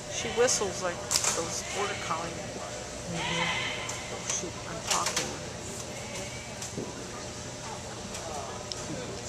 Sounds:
speech

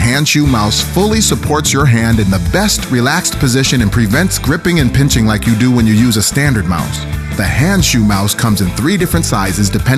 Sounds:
music, speech

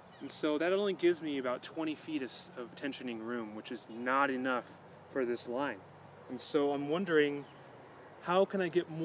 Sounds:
speech

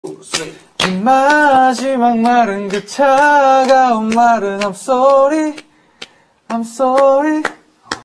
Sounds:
male singing

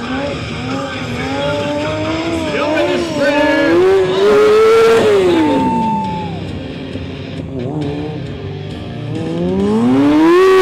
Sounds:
vehicle, auto racing, music, motorcycle, speech

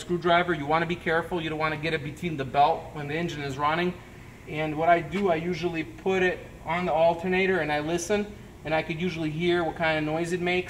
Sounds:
speech

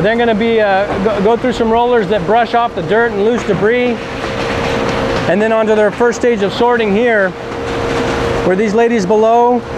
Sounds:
speech

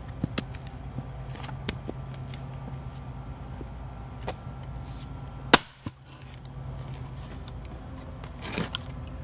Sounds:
wood

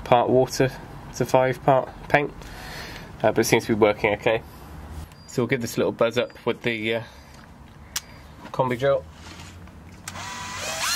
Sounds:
speech

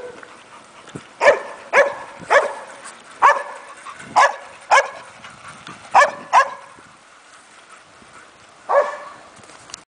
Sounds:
bicycle

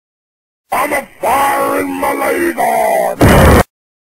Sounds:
speech

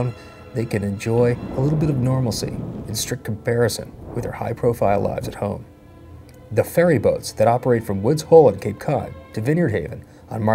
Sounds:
speech, music

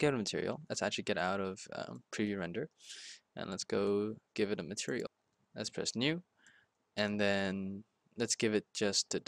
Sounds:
speech

